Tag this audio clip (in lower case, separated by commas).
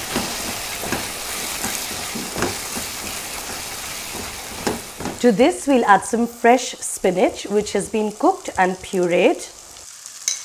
frying (food), speech